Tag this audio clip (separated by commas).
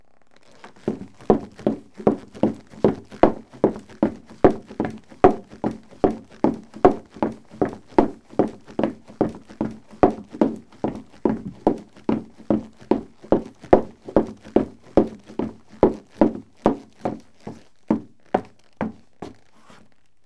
Run